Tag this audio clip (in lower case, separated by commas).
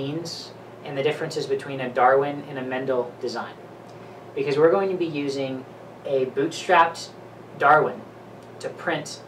speech